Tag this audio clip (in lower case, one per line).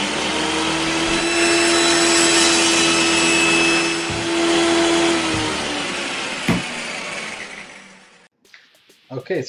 power tool
tools